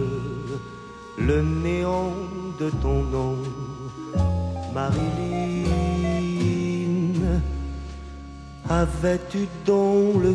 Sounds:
Music

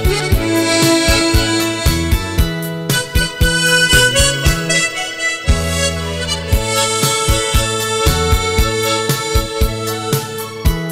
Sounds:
playing harmonica

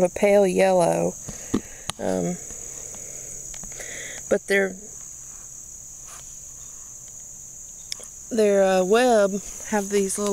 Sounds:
Insect, inside a small room, Speech

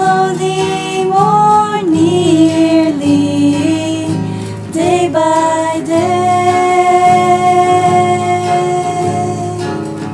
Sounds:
Music, Female singing

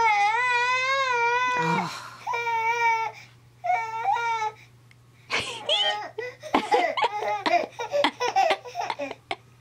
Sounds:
chortle

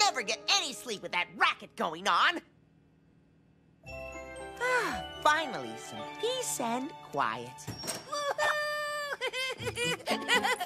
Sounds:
Speech, Music

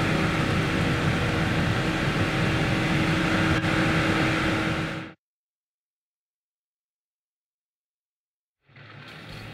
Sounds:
Clatter

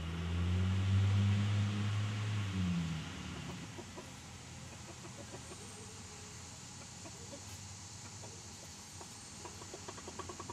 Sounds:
outside, rural or natural

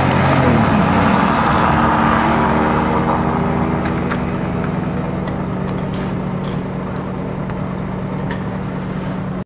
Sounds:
Vehicle, Car, vroom

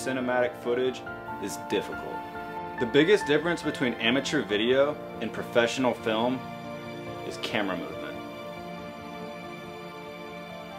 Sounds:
Speech, Music

